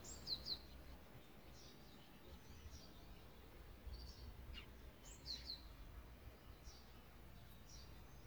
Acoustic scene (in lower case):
park